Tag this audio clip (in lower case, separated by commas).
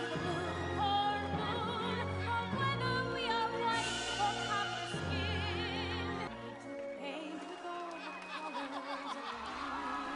music